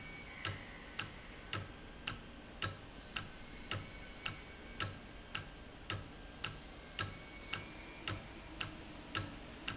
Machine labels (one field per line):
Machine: valve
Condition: normal